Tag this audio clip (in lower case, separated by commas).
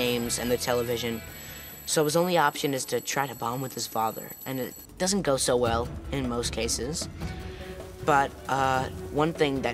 music, speech